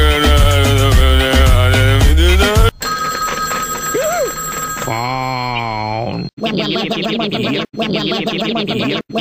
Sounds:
Music, Speech

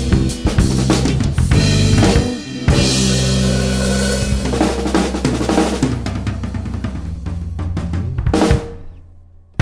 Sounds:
Rimshot, Drum roll, Hi-hat, Drum, Cymbal, Drum kit, Bass drum, Snare drum, Percussion

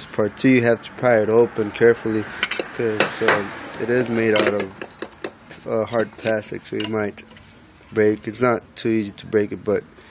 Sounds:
Speech

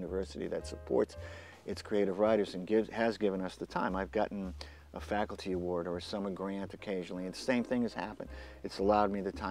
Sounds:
Speech, Music

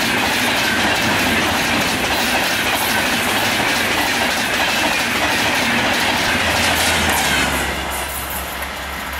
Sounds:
Vehicle, train wagon, Train, Rail transport

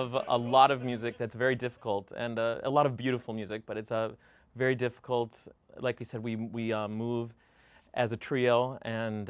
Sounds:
Speech

